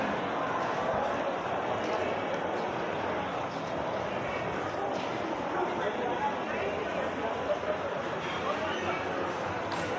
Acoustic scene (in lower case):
crowded indoor space